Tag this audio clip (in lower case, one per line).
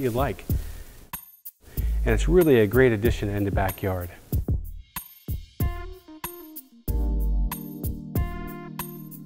speech
music